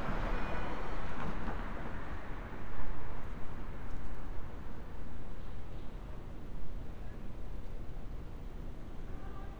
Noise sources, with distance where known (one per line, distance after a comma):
engine of unclear size
car horn, far